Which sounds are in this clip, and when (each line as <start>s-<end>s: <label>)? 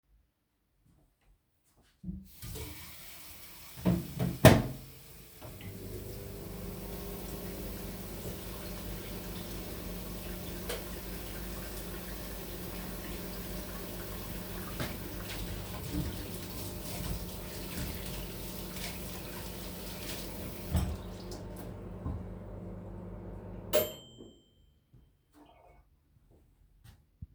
2.3s-21.1s: running water
3.8s-24.6s: microwave
10.8s-11.1s: light switch
14.7s-16.4s: footsteps